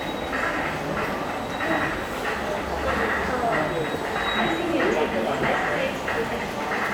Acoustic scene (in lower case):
subway station